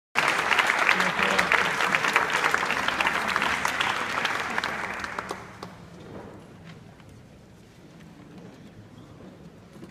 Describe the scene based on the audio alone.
Applause from audience